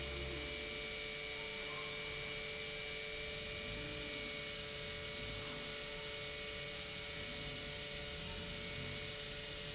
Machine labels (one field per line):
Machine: pump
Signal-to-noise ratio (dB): 6 dB